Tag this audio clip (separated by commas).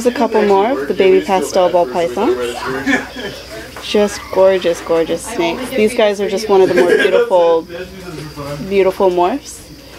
Speech